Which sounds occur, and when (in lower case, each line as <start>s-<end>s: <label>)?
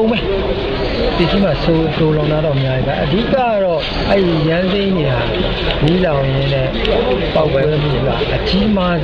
0.0s-0.3s: male speech
0.0s-9.0s: mechanisms
1.1s-3.9s: male speech
4.1s-5.3s: male speech
5.8s-6.8s: male speech
6.7s-9.0s: speech babble
7.3s-9.0s: male speech